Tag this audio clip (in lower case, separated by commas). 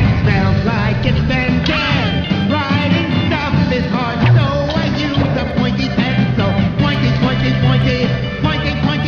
rock and roll, music